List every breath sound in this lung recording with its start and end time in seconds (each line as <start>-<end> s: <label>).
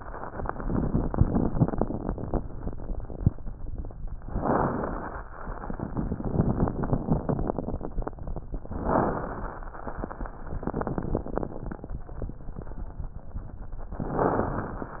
4.27-5.24 s: inhalation
4.27-5.24 s: crackles
8.79-9.75 s: inhalation
8.79-9.75 s: crackles
14.06-15.00 s: inhalation
14.06-15.00 s: crackles